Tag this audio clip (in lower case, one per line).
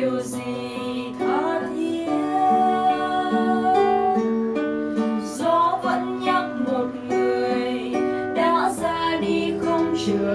music
tender music